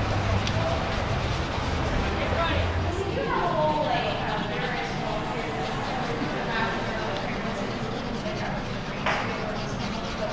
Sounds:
speech

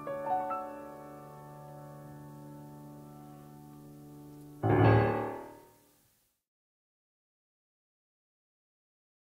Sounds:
foghorn

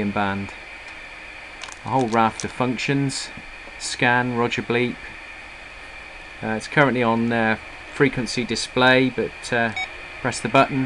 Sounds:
speech

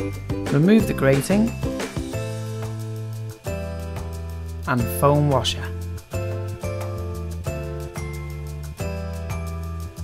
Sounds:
music, speech

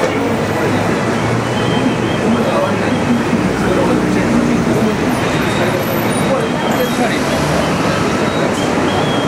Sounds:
outside, urban or man-made, speech

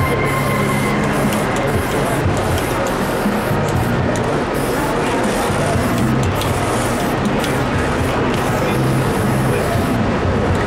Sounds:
music, speech, spray

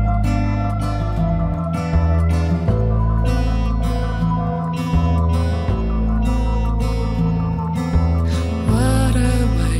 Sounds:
music

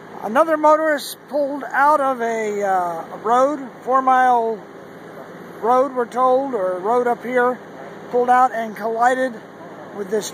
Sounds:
speech, vehicle

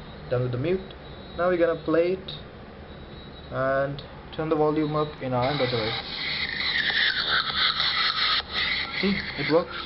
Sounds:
speech, music

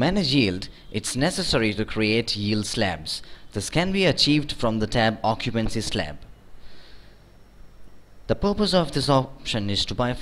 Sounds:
speech

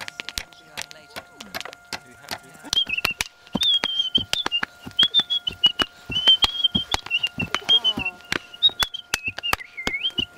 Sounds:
speech

